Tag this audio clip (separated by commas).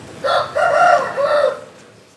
livestock, Animal, Fowl, Chicken